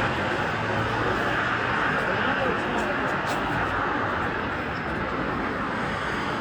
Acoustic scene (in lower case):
street